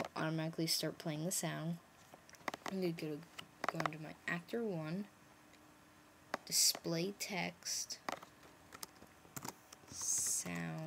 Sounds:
Speech

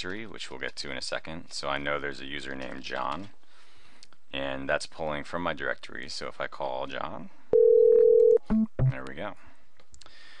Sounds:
Telephone, Speech

